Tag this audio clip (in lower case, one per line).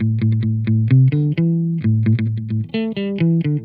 music
electric guitar
musical instrument
guitar
plucked string instrument